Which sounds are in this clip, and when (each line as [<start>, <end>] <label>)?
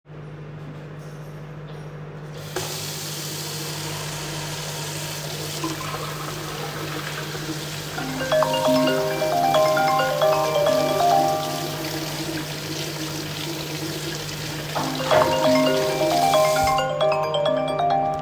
[0.03, 18.22] microwave
[2.51, 16.87] running water
[7.94, 11.71] phone ringing
[14.75, 18.22] phone ringing